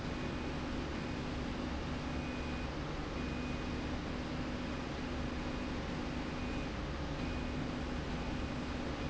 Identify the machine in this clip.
slide rail